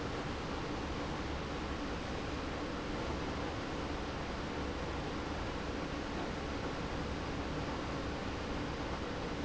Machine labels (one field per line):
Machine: pump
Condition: abnormal